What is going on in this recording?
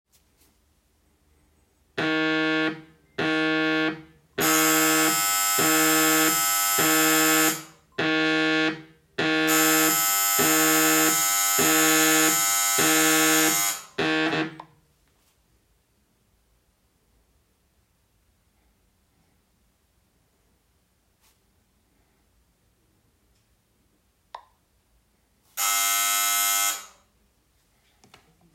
The phone started ringing. After that the doorbell rang twice. The phone stopped ringing. After a while there is notification and then the doorbell rang again.